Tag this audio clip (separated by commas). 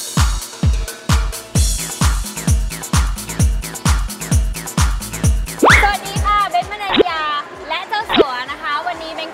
Speech, Music